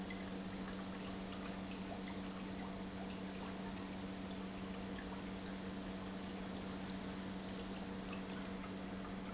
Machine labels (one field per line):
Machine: pump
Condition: normal